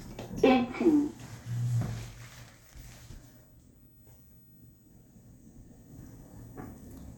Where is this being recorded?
in an elevator